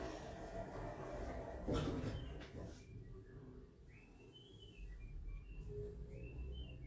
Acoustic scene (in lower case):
elevator